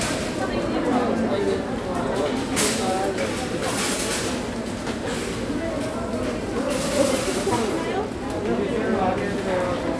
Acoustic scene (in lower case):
crowded indoor space